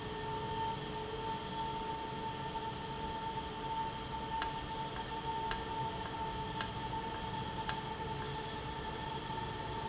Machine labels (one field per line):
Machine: valve